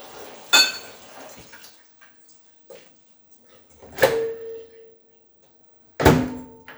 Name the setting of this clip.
kitchen